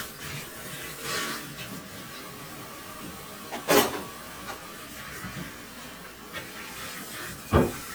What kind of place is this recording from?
kitchen